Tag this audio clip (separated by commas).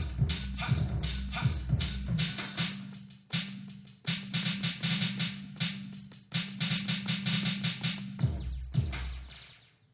Sampler, Drum machine, Music